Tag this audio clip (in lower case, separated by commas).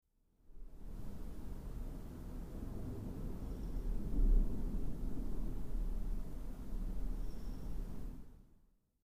rain, thunder, thunderstorm, water